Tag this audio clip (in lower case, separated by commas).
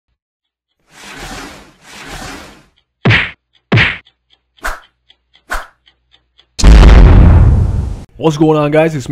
whack